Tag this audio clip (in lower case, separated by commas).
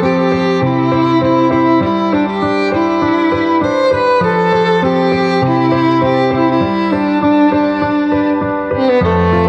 music